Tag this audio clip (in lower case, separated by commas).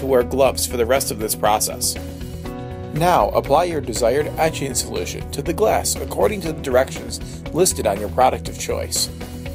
music, speech